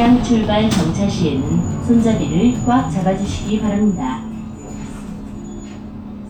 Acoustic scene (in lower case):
bus